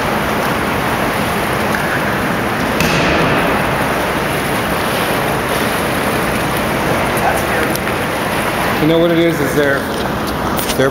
A water flowing sound followed by a wind sound and a man speaks